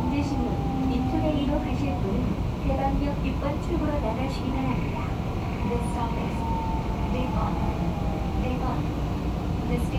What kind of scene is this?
subway train